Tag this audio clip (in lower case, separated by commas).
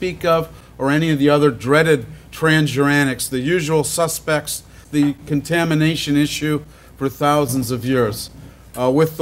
speech